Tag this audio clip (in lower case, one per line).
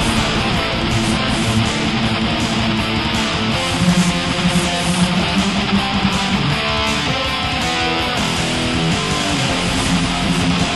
guitar
plucked string instrument
music
musical instrument